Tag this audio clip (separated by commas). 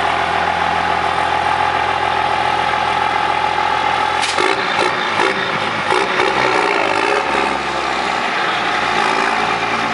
Accelerating, revving, Heavy engine (low frequency), Vehicle